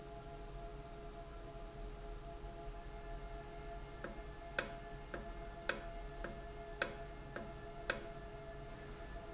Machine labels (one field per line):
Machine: valve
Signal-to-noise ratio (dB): 6 dB